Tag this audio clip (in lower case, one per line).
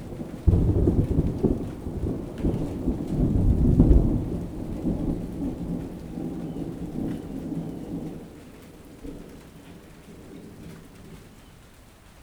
thunderstorm
thunder